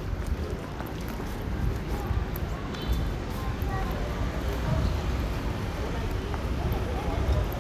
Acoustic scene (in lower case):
residential area